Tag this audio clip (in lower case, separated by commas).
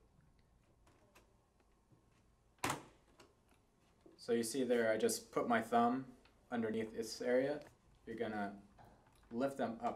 speech